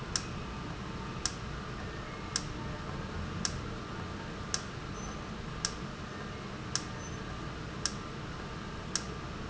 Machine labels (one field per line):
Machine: valve